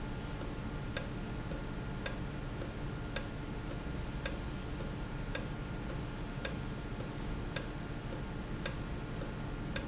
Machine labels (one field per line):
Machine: valve